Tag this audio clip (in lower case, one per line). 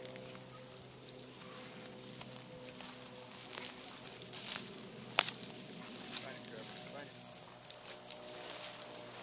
speech